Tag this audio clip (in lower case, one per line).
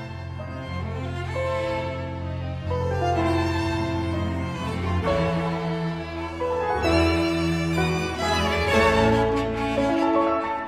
music
piano
violin
bowed string instrument